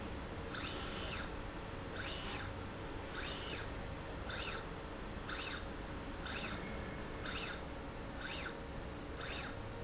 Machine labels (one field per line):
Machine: slide rail